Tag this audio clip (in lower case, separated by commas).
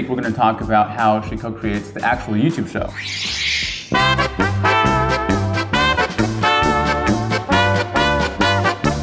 speech, music